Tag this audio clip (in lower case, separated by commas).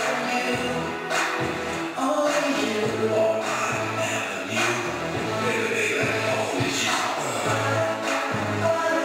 music